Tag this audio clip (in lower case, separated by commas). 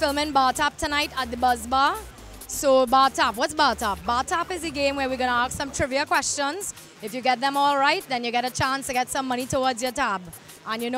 speech, music